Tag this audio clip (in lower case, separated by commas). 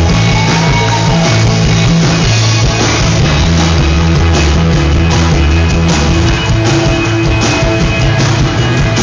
music